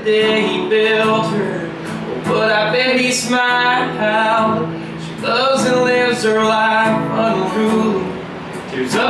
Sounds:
independent music, music

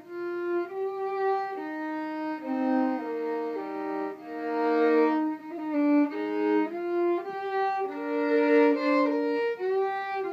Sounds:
fiddle, music, musical instrument

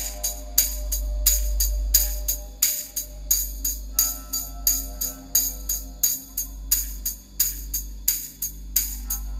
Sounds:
percussion, music

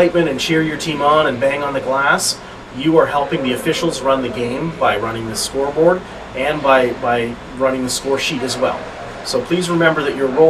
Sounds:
speech

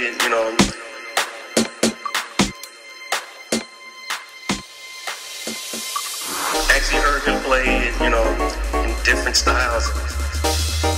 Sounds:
music

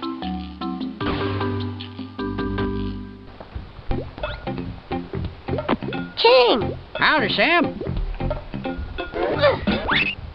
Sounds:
music, speech

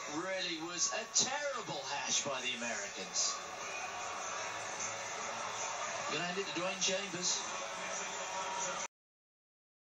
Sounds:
speech

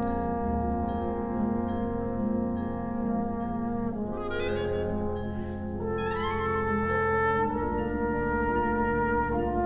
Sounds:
brass instrument, trombone

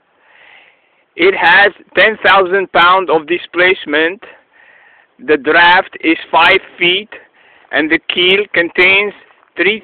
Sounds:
speech

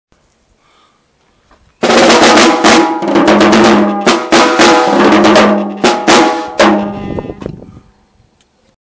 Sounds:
musical instrument, drum, music, bass drum, drum kit

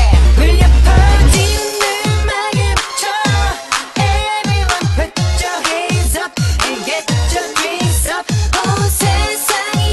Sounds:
pop music, music of asia, music

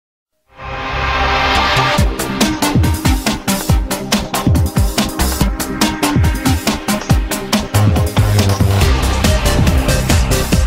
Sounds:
drum and bass

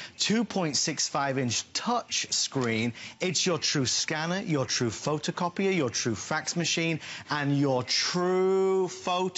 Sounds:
speech

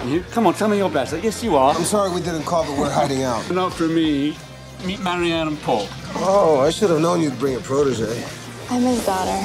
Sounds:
music, speech

